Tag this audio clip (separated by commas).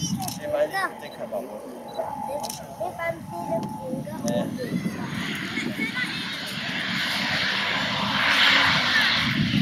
Speech, Vehicle, Aircraft, airscrew, airplane